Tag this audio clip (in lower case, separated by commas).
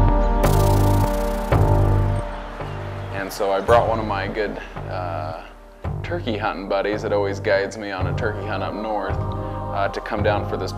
speech, music, coo, bird